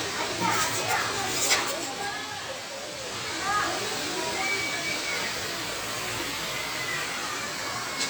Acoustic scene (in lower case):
park